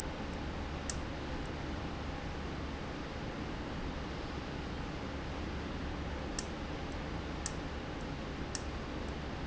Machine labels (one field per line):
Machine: valve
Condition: abnormal